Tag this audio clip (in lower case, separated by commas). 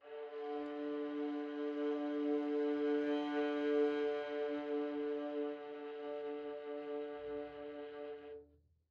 bowed string instrument, musical instrument, music